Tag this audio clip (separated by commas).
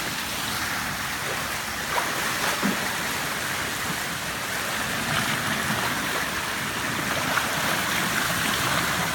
swimming